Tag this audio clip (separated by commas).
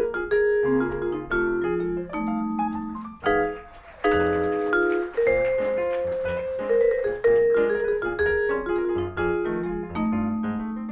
playing vibraphone